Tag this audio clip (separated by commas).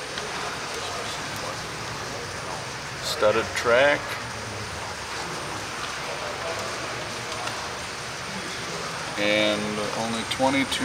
Speech